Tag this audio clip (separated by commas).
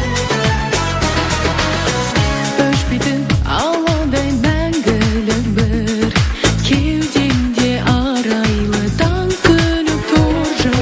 Music, Pop music